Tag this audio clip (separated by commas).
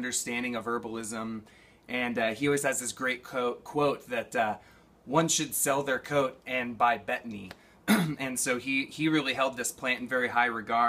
Speech